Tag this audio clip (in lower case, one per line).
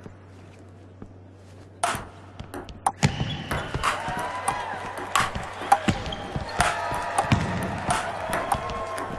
playing table tennis